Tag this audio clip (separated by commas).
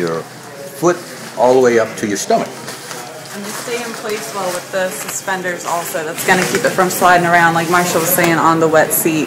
Speech